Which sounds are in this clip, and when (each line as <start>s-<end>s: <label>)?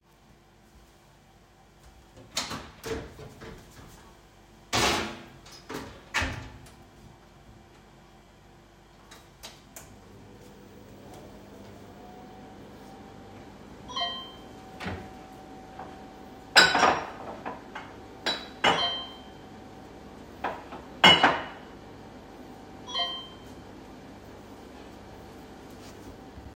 2.3s-6.8s: microwave
9.4s-26.6s: microwave
13.7s-14.3s: phone ringing
14.7s-16.1s: wardrobe or drawer
16.5s-18.7s: cutlery and dishes
18.7s-19.1s: phone ringing
20.4s-21.8s: cutlery and dishes
22.7s-23.4s: phone ringing